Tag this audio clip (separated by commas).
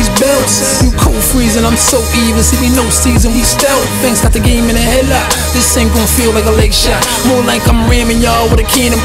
Music